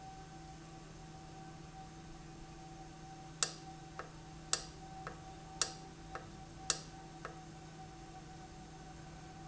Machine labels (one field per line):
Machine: valve